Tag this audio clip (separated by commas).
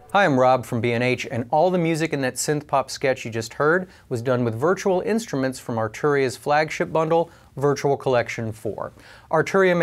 Speech